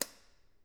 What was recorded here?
switch being turned on